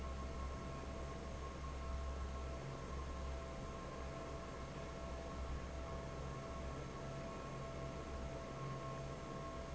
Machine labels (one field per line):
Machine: fan